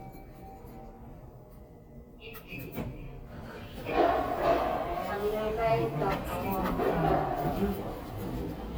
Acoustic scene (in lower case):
elevator